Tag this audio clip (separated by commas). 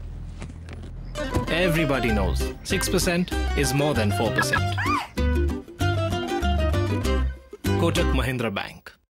Music, Speech